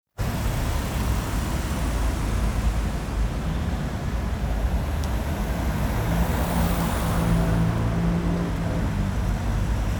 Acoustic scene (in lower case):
street